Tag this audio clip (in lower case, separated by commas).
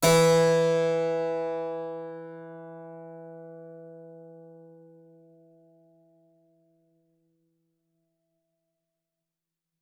keyboard (musical), musical instrument, music